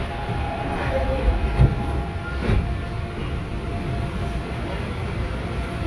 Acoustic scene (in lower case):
subway train